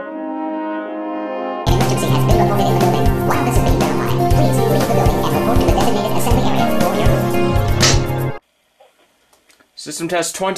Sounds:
music
speech

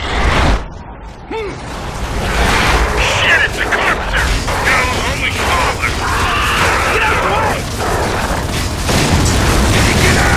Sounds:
speech

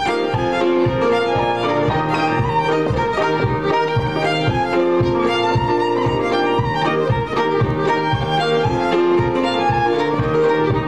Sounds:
violin
fiddle
music
musical instrument

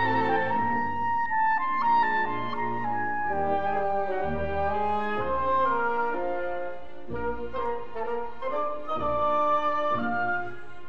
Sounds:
playing clarinet

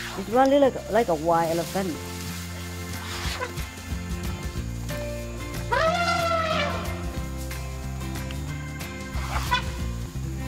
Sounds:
elephant trumpeting

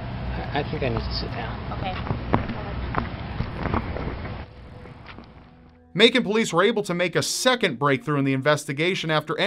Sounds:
speech

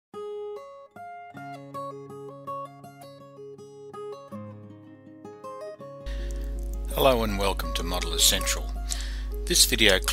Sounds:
acoustic guitar

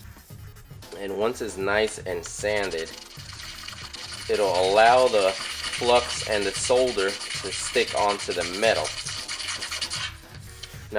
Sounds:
speech
music
inside a small room

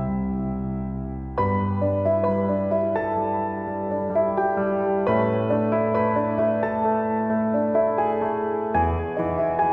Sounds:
music

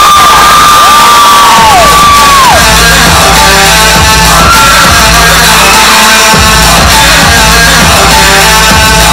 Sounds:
bellow
music

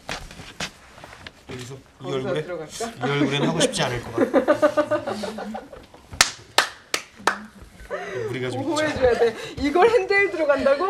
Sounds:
speech

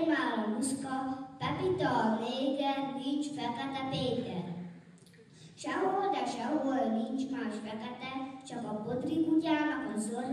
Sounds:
speech

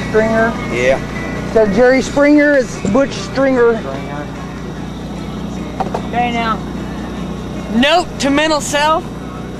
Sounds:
speech
music
field recording

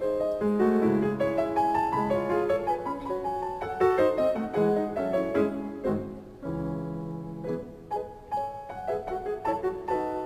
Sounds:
music
musical instrument

